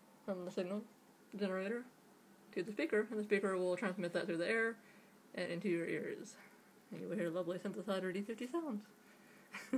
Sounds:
Speech

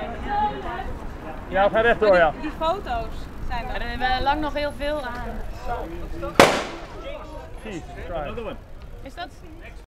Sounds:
Speech, Bicycle

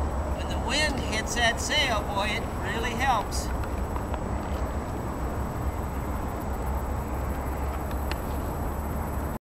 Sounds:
Speech

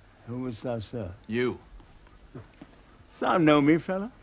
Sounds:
Speech

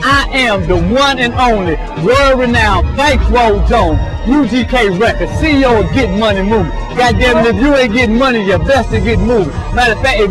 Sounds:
Music, Speech

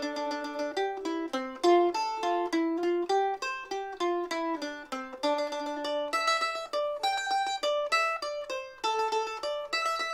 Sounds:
Mandolin, Music

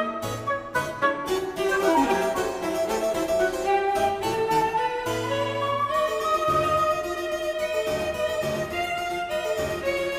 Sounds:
Keyboard (musical), Harpsichord, Piano

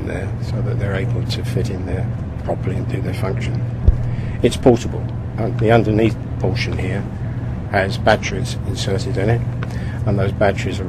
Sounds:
Speech

